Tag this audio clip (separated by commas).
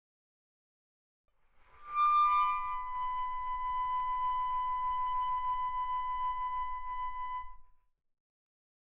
Musical instrument, Music, Harmonica